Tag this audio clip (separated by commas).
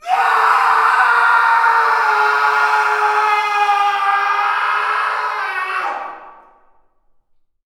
Screaming, Human voice